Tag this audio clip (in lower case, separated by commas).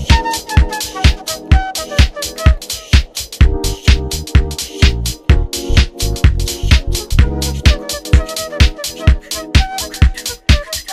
music, house music